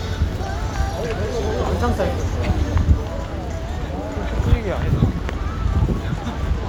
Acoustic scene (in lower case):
street